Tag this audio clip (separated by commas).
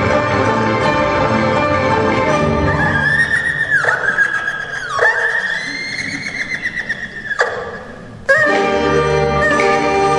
playing erhu